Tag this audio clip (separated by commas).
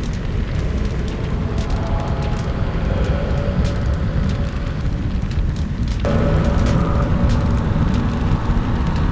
Music